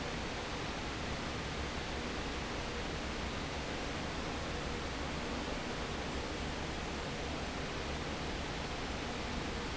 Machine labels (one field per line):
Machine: fan